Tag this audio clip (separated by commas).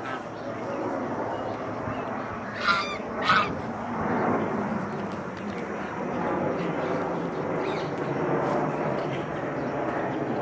outside, urban or man-made, Goose, Bird